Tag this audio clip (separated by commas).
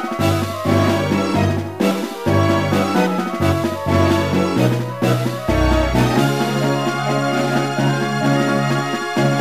Soundtrack music, Music